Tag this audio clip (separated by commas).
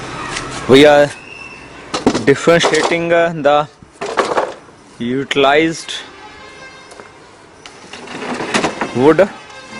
Speech, Music